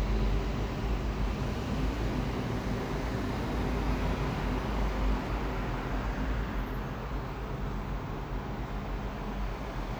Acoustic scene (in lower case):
street